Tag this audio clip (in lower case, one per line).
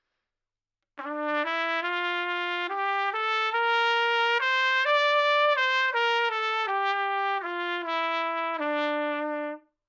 musical instrument
trumpet
music
brass instrument